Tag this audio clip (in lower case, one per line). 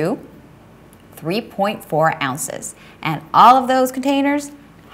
speech